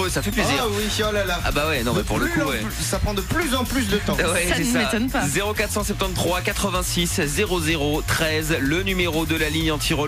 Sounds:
speech, radio, music

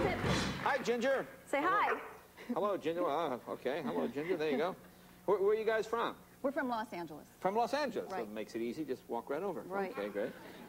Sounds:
music, speech, bow-wow

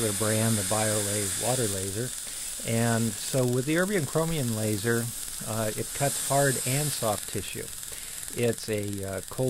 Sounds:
speech

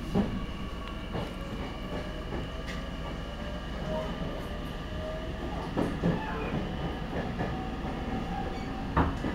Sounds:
vehicle, train

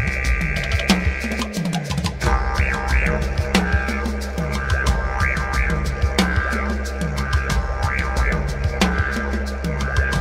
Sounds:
playing didgeridoo

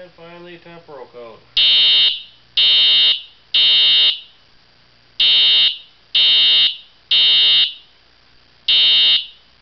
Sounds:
inside a small room, fire alarm, speech

